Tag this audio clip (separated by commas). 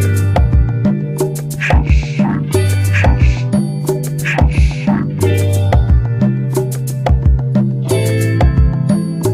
Music